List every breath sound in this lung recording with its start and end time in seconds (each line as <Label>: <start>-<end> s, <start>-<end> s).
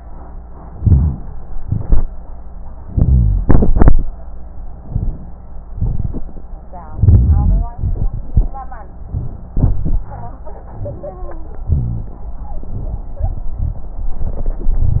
Inhalation: 0.70-1.35 s, 2.85-3.46 s, 4.74-5.35 s, 6.93-7.71 s, 9.54-10.36 s, 11.67-12.28 s
Exhalation: 1.57-2.05 s, 5.71-6.22 s, 7.76-8.50 s
Rhonchi: 0.70-1.35 s, 2.85-3.46 s, 6.95-7.68 s, 9.62-10.36 s, 11.67-12.22 s
Crackles: 1.57-2.05 s, 4.74-5.35 s, 5.71-6.22 s, 7.78-8.52 s